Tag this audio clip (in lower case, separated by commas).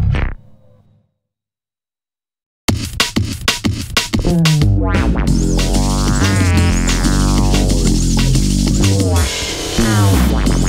bass guitar, synthesizer, guitar, musical instrument, music, effects unit